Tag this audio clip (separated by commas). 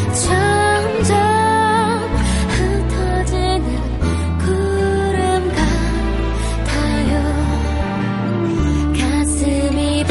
Music